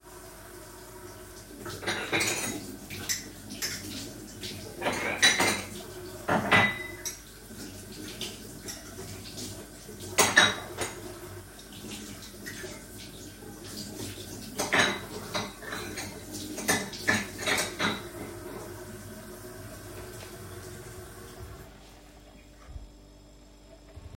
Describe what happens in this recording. I stand at the kitchen sink and turn on the water. I wash dishes and cutlery by hand while the water continues running. I place the cleaned dishes back on the counter.